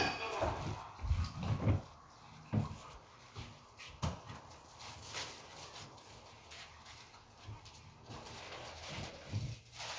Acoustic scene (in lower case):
elevator